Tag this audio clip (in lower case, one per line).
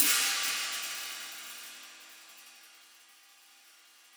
cymbal
hi-hat
percussion
musical instrument
music